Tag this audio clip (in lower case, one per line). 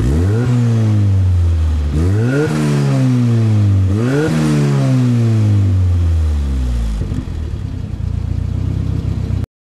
vehicle
accelerating